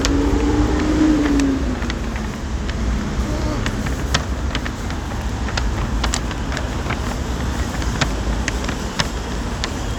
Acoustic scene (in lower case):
street